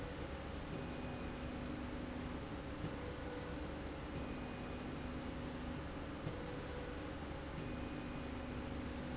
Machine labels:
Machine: slide rail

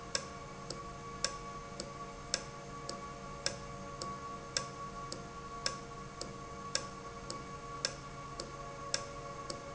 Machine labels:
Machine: valve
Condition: normal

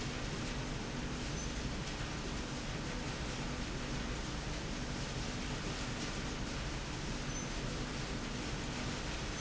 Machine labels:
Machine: slide rail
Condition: normal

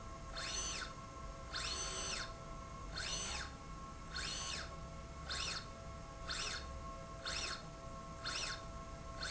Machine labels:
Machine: slide rail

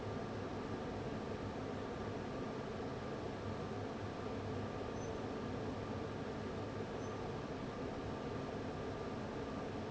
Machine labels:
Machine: fan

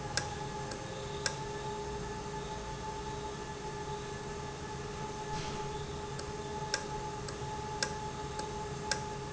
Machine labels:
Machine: valve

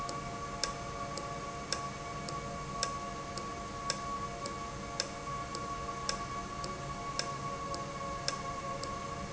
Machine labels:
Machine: valve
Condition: normal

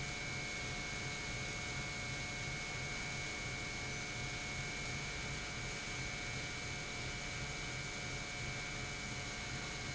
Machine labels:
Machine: pump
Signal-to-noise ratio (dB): 0 dB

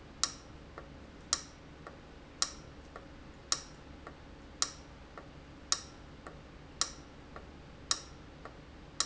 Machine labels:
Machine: valve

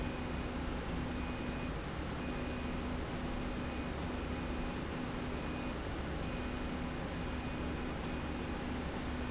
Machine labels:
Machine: slide rail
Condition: normal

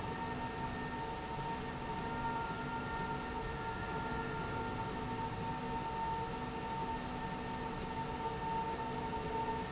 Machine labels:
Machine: slide rail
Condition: normal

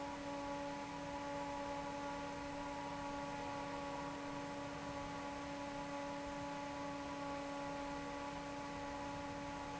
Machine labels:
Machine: fan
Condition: normal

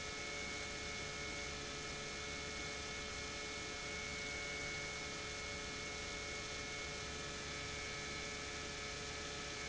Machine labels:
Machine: pump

